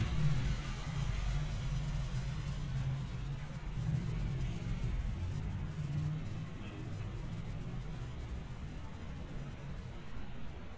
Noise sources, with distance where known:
medium-sounding engine

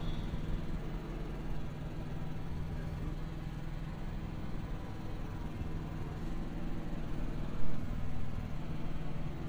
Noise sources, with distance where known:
small-sounding engine

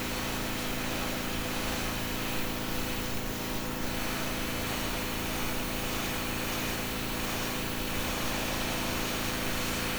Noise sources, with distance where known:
engine of unclear size, near

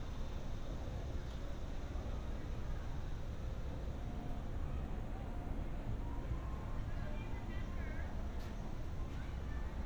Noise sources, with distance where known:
background noise

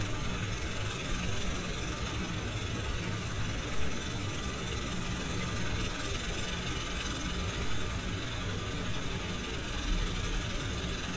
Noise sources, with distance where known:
unidentified impact machinery

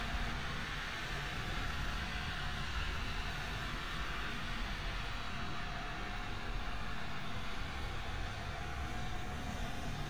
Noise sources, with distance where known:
large-sounding engine, near

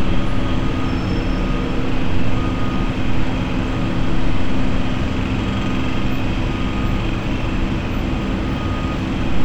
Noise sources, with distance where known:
large-sounding engine, near; jackhammer, far

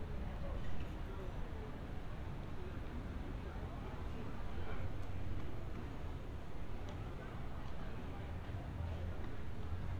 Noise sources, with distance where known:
person or small group talking

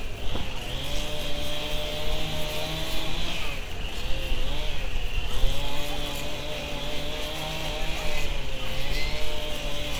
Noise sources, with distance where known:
small or medium rotating saw

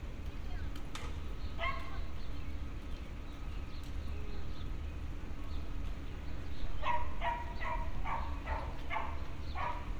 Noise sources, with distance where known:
dog barking or whining, near

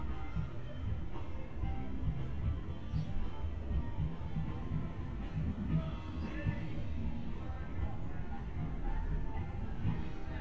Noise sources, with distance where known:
music from an unclear source

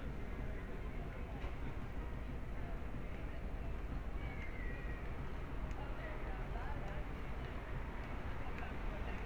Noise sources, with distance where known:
person or small group talking, far

